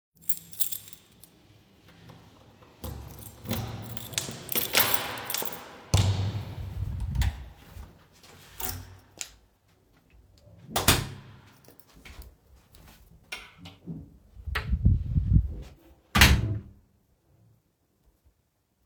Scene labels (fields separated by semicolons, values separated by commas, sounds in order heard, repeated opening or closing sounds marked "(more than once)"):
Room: hallway; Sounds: keys, door (more than once), wardrobe or drawer